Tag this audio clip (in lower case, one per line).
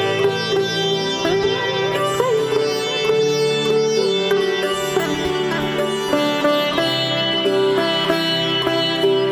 playing sitar